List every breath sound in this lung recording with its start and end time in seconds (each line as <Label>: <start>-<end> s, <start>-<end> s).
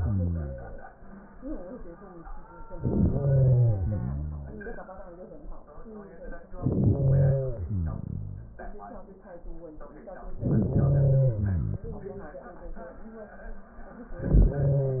Inhalation: 2.80-3.76 s, 6.50-7.37 s, 10.36-11.31 s
Exhalation: 3.72-4.87 s, 7.37-8.76 s, 11.28-12.41 s